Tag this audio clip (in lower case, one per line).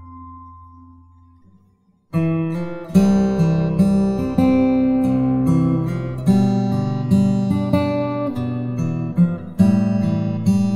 guitar
strum
music
musical instrument
plucked string instrument